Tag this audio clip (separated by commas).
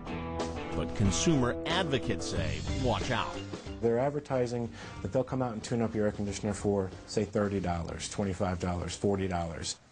Speech, Music